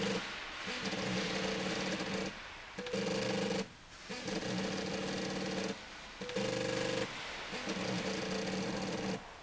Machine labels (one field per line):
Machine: slide rail